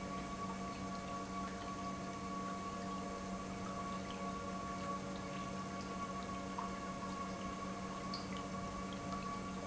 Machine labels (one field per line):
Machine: pump